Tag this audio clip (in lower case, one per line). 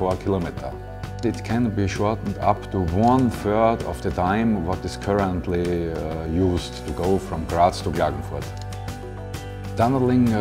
music
speech